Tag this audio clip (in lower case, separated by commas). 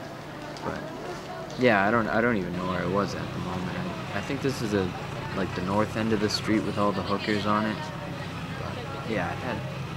speech